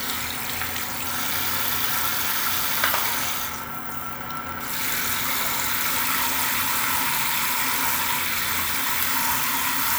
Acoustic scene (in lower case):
restroom